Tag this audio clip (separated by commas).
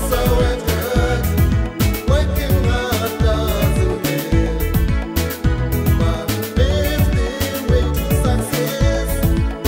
Music